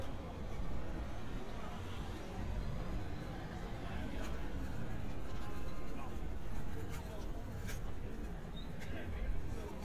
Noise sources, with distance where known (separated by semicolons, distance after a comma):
car horn, far; person or small group talking